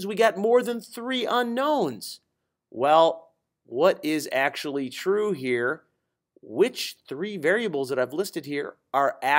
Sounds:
Speech

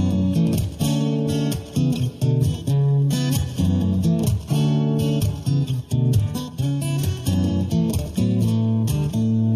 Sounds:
Musical instrument, Music, Strum, Plucked string instrument, Guitar

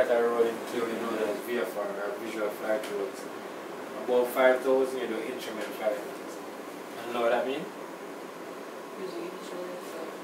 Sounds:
Speech

